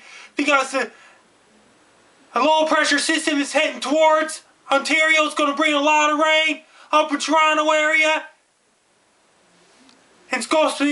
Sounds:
speech

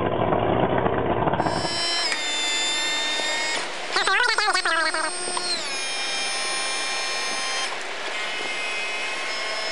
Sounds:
speedboat

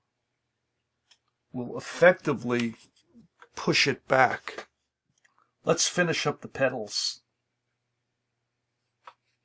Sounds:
speech, narration

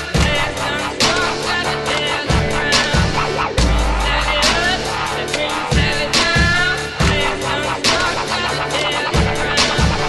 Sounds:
music

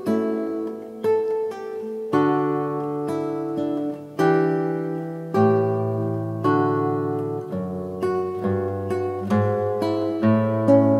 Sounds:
guitar, musical instrument, plucked string instrument, playing acoustic guitar, acoustic guitar, music

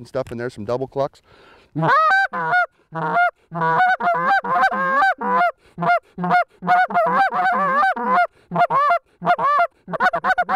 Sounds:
speech, honk

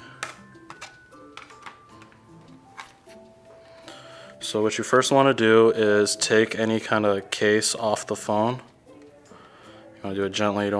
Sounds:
speech, music

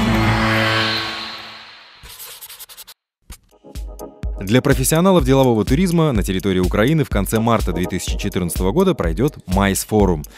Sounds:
music, speech

